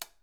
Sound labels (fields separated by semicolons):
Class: switch; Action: being turned on; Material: plastic